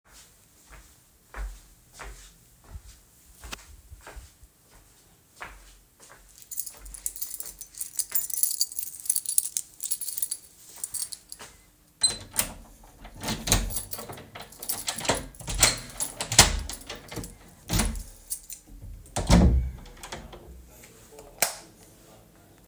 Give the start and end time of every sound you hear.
[0.76, 8.63] footsteps
[6.33, 11.83] keys
[10.75, 11.53] footsteps
[11.99, 20.42] door
[13.69, 18.97] keys
[21.29, 22.03] light switch

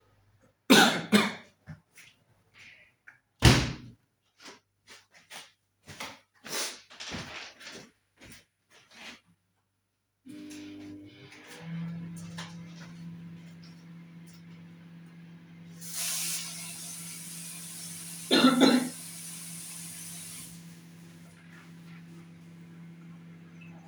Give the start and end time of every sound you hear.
[3.31, 4.05] window
[4.38, 9.49] footsteps
[4.51, 4.63] window
[10.21, 23.87] microwave
[15.79, 20.84] running water

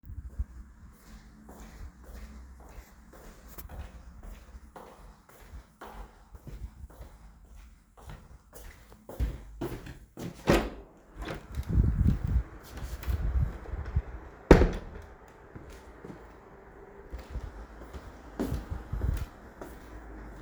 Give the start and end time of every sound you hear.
[0.00, 10.34] footsteps
[10.37, 11.53] door
[14.38, 15.22] door
[15.17, 20.42] footsteps

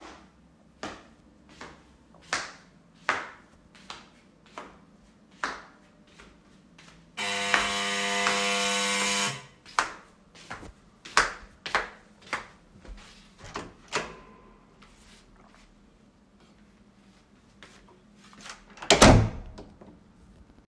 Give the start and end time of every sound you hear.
[0.00, 13.55] footsteps
[7.17, 9.51] bell ringing
[13.43, 19.67] door
[17.61, 18.59] footsteps

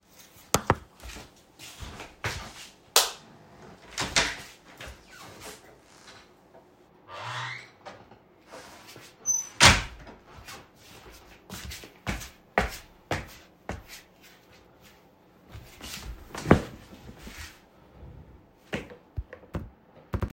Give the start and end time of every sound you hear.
[0.83, 2.88] footsteps
[2.77, 3.34] light switch
[3.85, 5.91] door
[4.65, 5.80] footsteps
[6.98, 10.71] door
[8.38, 17.54] footsteps

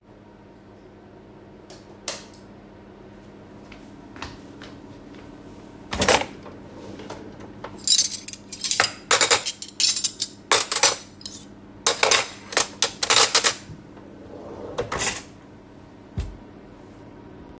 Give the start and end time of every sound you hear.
[1.98, 2.28] light switch
[3.62, 5.57] footsteps
[5.75, 7.66] wardrobe or drawer
[7.62, 13.75] cutlery and dishes
[14.26, 15.34] wardrobe or drawer

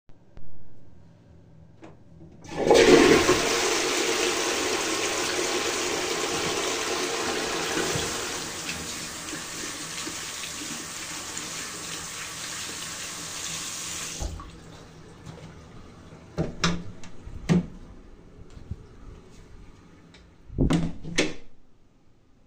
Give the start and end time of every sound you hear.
[1.82, 8.77] toilet flushing
[7.74, 14.46] running water
[16.37, 17.75] door
[20.45, 21.50] door

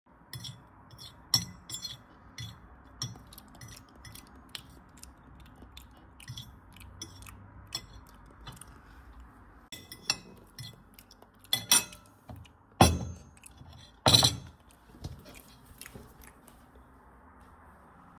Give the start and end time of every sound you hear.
[0.33, 17.90] cutlery and dishes

